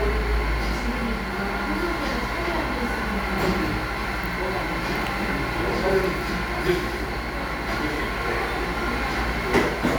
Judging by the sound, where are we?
in a cafe